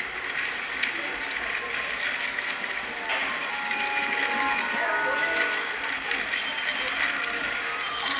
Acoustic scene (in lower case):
cafe